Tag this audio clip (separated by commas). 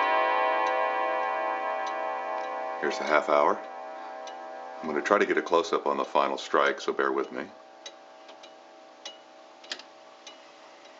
Speech, Tick, Tick-tock